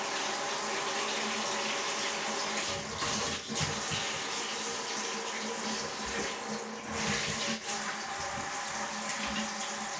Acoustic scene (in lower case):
restroom